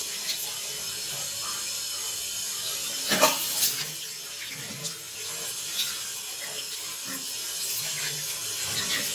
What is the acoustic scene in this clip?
restroom